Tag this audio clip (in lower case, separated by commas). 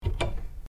domestic sounds, cupboard open or close